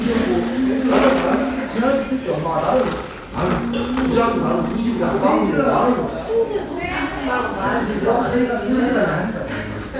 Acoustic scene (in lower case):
cafe